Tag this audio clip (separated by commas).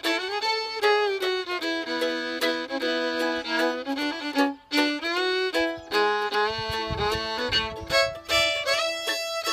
Pizzicato, Music, fiddle, Musical instrument